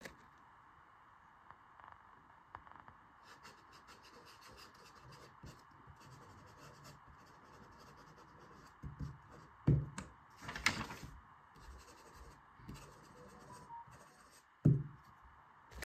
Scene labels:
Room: office; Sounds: phone ringing

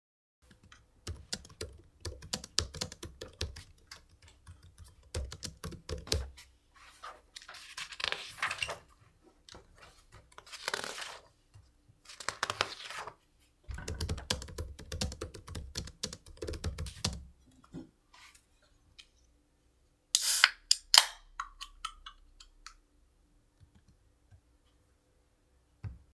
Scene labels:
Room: bedroom; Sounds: keyboard typing

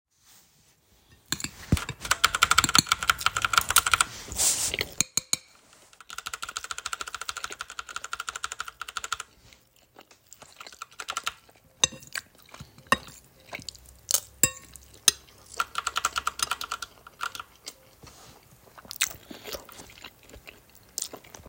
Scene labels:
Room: bedroom; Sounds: keyboard typing, cutlery and dishes

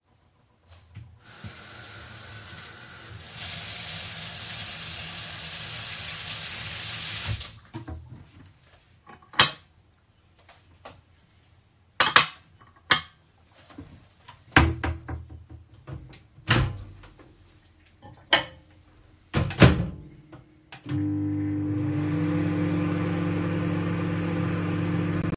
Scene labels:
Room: kitchen; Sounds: running water, wardrobe or drawer (more than once), cutlery and dishes, microwave

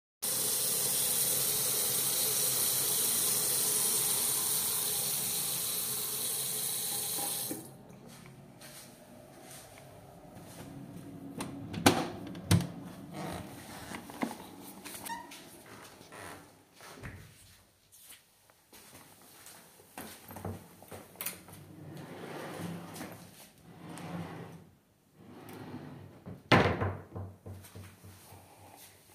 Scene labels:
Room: lavatory, hallway; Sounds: running water, door (more than once), footsteps, wardrobe or drawer

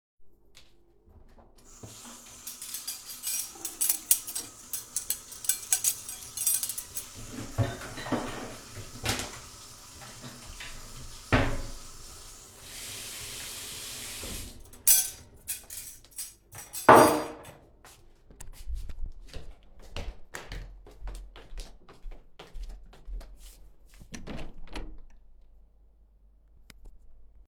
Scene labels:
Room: office; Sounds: running water, cutlery and dishes, footsteps, window

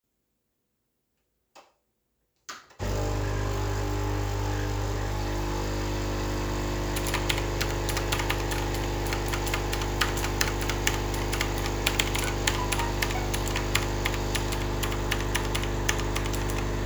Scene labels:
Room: kitchen; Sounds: coffee machine, keyboard typing, phone ringing

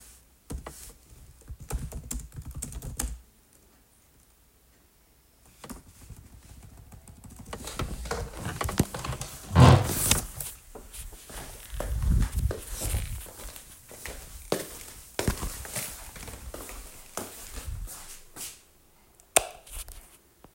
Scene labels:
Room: office, hallway; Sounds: keyboard typing, footsteps, light switch

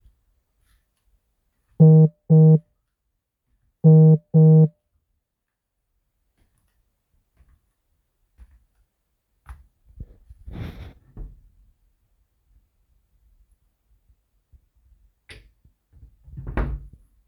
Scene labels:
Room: bedroom; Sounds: phone ringing, footsteps, wardrobe or drawer (more than once)

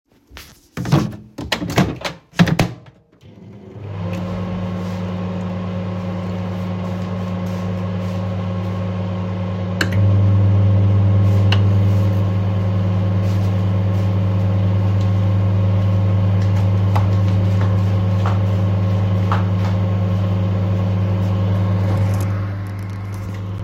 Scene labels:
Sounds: light switch, microwave, footsteps

